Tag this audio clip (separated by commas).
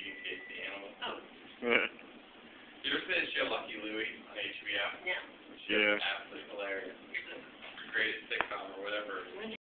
Speech